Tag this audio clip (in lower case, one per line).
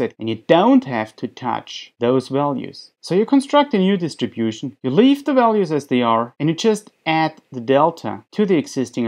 speech